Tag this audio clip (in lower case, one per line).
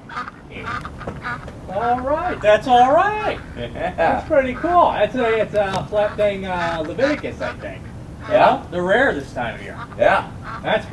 speech
duck
quack